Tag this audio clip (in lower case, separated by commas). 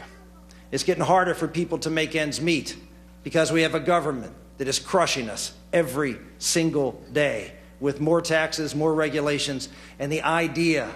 speech, narration, man speaking